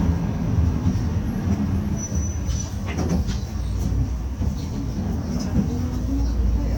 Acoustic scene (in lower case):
bus